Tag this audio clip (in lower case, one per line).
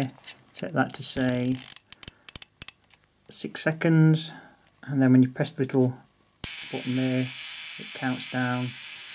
speech
electric shaver